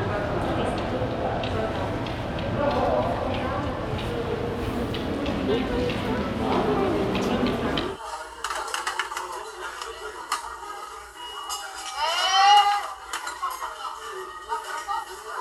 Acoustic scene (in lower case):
crowded indoor space